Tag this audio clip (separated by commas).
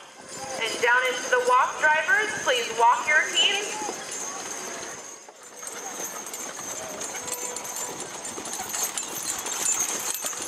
Animal, Speech, Horse, Clip-clop